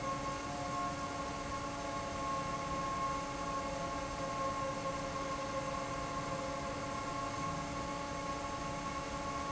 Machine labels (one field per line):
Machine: fan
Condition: normal